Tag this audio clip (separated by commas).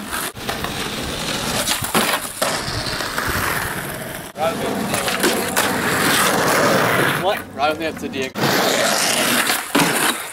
thwack